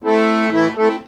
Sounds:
music, accordion, musical instrument

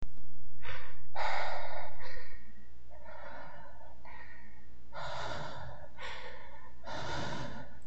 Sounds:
breathing, respiratory sounds

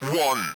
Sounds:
speech, speech synthesizer, human voice

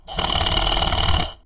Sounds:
engine, tools

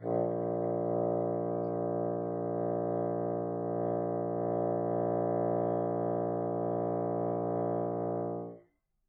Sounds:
musical instrument, woodwind instrument, music

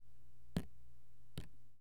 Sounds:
drip, liquid, water, raindrop, rain

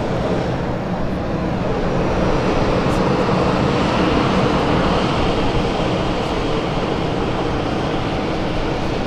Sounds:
fixed-wing aircraft, vehicle, aircraft

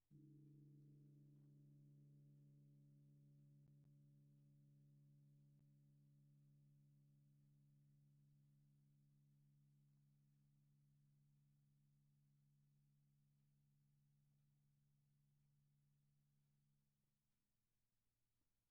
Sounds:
music, gong, percussion, musical instrument

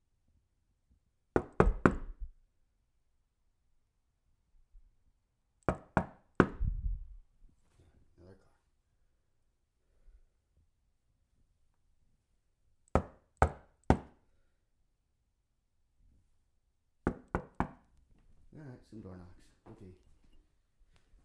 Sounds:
door, domestic sounds, knock

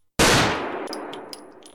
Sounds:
gunfire, explosion

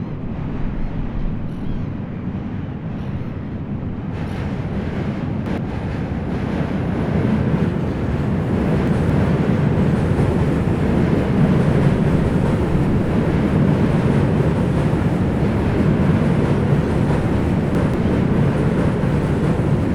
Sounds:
train, vehicle, rail transport

